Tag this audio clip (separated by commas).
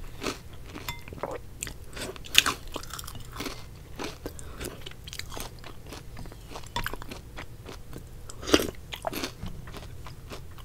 people slurping